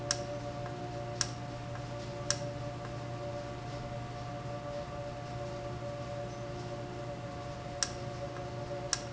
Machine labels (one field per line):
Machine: valve